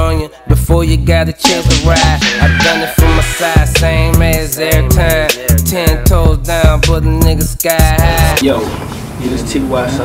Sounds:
rapping

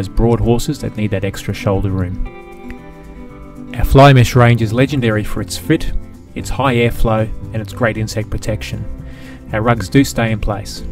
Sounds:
Music, Speech

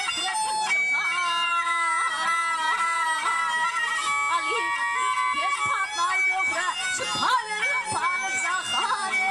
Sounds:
Music, inside a large room or hall

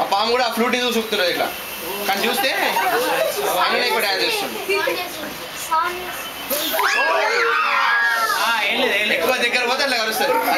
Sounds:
Animal, Snake, Speech, inside a large room or hall

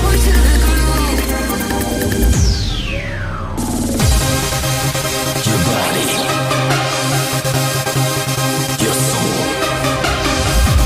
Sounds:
Techno, Electronic music, Music

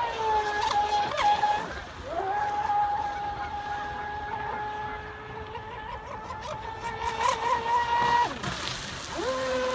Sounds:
speedboat, Boat

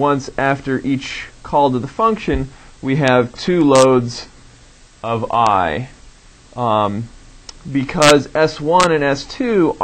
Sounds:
Speech

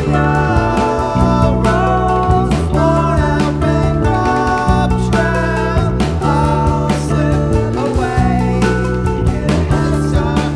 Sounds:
Music

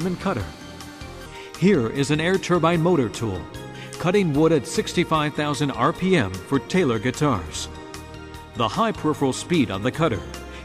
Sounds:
Speech, Music, Tools

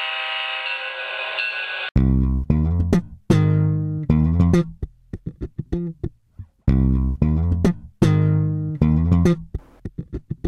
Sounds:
Music

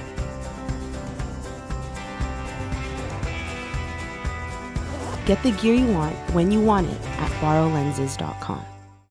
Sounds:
Music, Speech

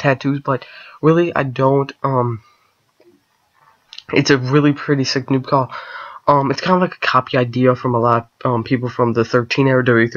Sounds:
Speech

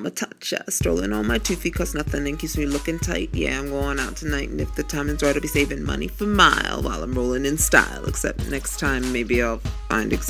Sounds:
Music

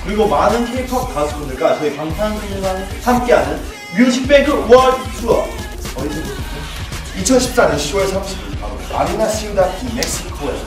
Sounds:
Music, Speech

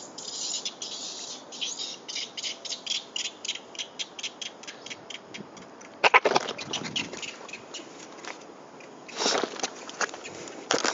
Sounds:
Animal, outside, rural or natural

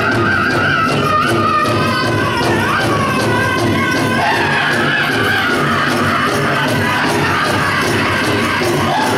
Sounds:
Music

